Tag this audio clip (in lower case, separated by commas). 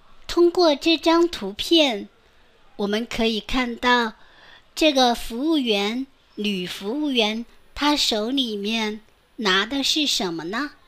speech